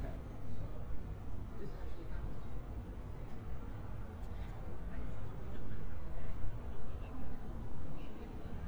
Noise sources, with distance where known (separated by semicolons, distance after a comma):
unidentified human voice, far